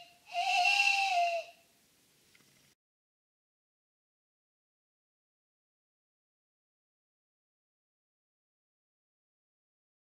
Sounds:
owl hooting

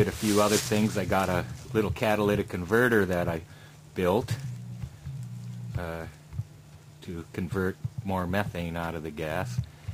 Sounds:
speech, music

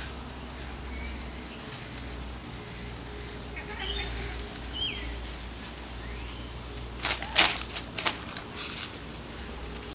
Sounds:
animal

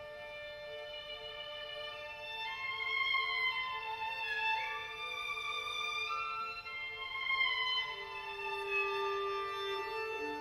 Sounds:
music, violin, musical instrument

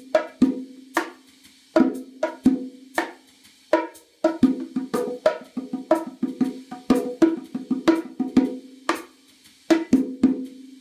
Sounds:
playing bongo

